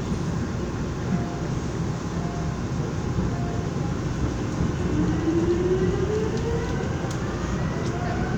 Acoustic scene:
subway train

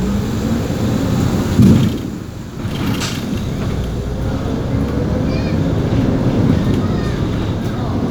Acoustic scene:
bus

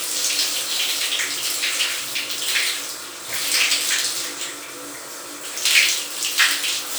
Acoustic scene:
restroom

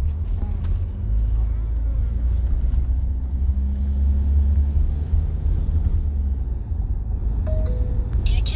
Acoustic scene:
car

